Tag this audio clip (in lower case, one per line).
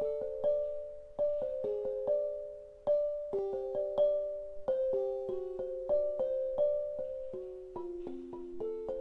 xylophone